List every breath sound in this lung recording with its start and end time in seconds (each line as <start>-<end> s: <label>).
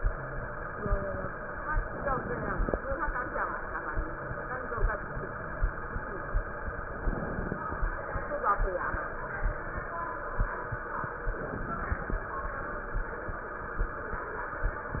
1.82-2.77 s: inhalation
6.83-7.65 s: inhalation
11.31-12.28 s: inhalation